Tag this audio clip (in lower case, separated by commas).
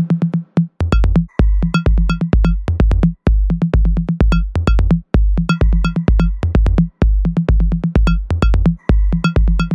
electronic music, techno, music